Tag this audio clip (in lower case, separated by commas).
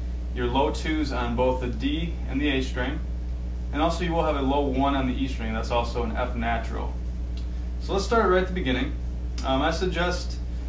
speech